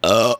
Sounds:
eructation

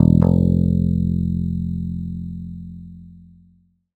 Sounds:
plucked string instrument
guitar
music
bass guitar
musical instrument

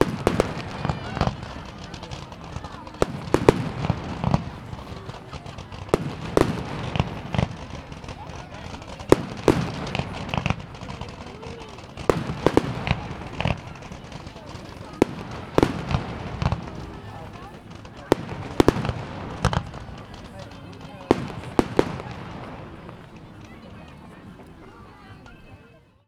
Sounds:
fireworks
explosion

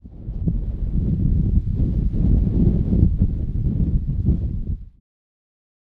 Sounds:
wind

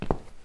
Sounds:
walk

